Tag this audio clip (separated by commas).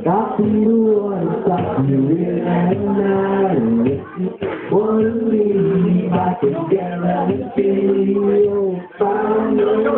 Speech, Music, Male singing